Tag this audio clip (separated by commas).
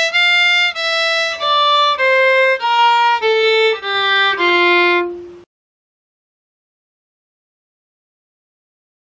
Violin, Musical instrument, Music